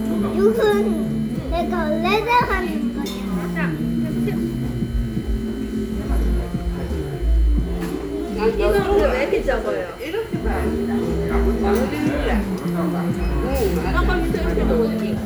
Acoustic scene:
restaurant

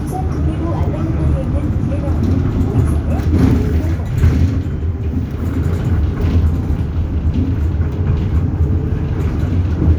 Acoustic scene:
bus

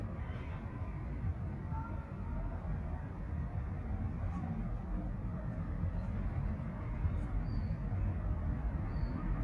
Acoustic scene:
residential area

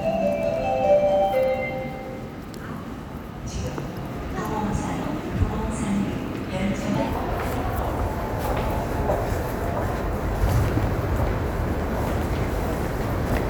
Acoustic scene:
subway station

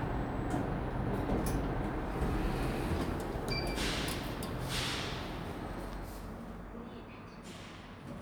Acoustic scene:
elevator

